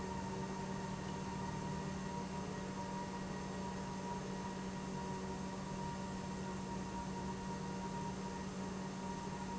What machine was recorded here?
pump